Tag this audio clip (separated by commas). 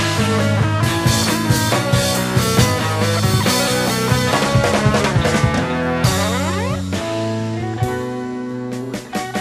Rock music, Music